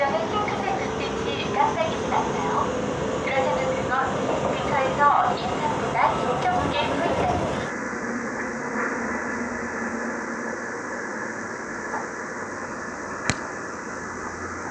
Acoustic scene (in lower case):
subway train